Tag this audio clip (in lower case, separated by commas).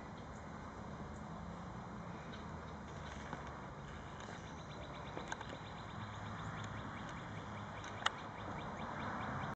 animal